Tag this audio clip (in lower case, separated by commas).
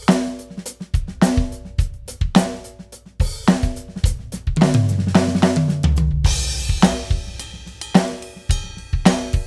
playing cymbal